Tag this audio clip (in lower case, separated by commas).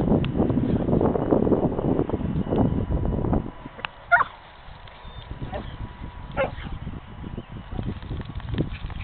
yip